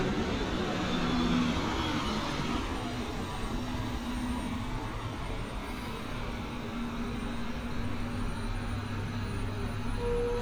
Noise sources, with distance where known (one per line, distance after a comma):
large-sounding engine, near